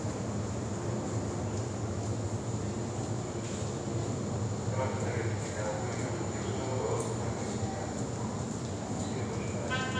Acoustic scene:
subway station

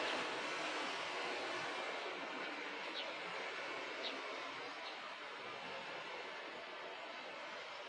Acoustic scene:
park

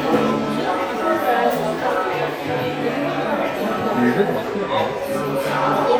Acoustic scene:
crowded indoor space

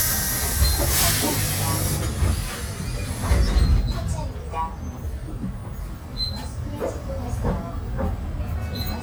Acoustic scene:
bus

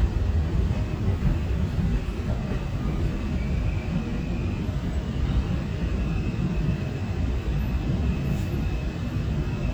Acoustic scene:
subway train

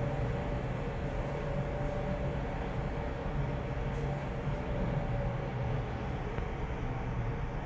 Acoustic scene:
elevator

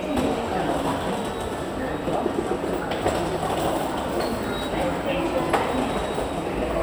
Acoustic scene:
subway station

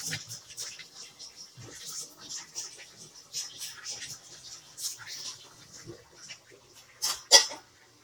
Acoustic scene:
kitchen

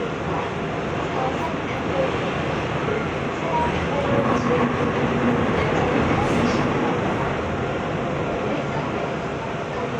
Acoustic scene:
subway train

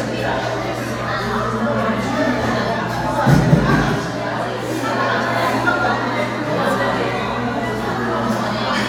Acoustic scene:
crowded indoor space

